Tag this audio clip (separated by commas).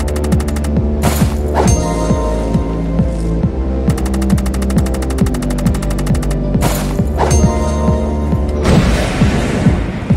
Throbbing, Mains hum